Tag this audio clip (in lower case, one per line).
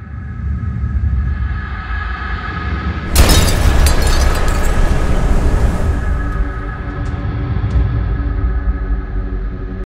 music
explosion